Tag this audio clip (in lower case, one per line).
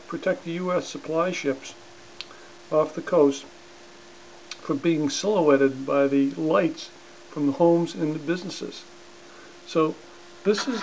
speech